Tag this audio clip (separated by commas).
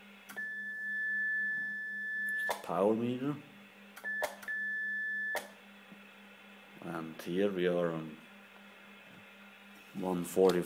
Radio, Speech